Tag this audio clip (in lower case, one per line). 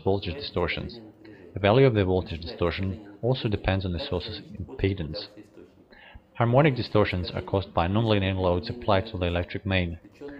speech